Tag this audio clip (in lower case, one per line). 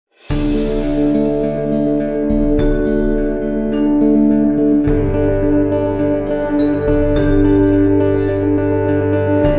echo
music